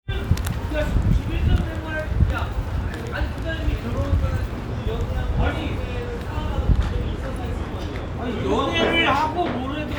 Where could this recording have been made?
in a restaurant